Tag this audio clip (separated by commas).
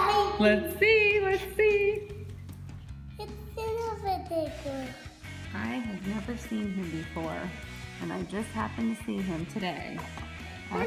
Speech, Music